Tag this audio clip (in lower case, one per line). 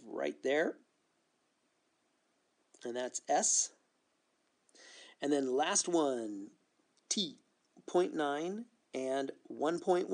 speech